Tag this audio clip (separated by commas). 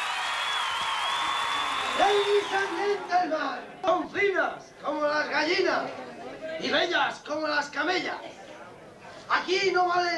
Speech